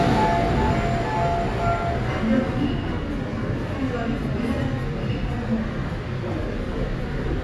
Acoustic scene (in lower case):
subway station